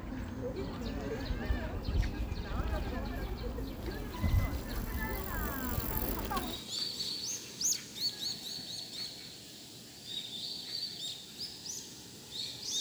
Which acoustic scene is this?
park